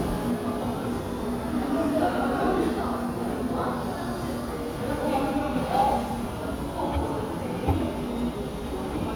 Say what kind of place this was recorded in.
crowded indoor space